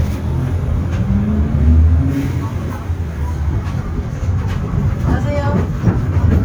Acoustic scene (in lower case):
bus